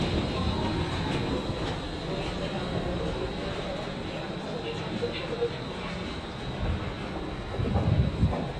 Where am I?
in a subway station